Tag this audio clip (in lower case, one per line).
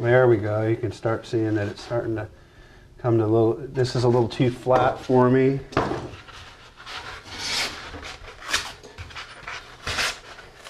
speech